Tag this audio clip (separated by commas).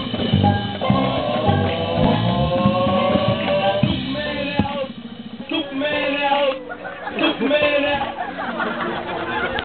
Music, Percussion